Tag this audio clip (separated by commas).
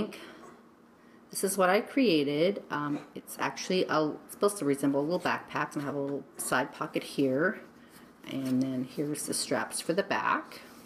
Speech